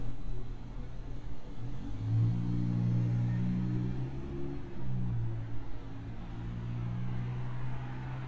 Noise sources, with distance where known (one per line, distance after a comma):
medium-sounding engine